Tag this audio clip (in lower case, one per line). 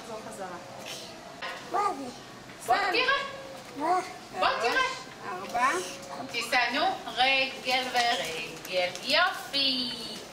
kid speaking
speech
bicycle